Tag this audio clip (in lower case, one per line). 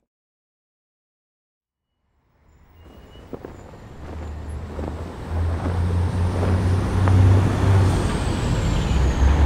traffic noise